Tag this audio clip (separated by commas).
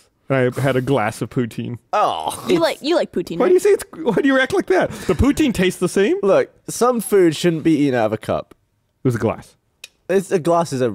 Speech